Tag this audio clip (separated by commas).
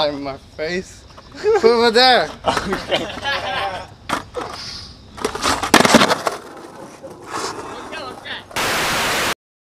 Speech, Skateboard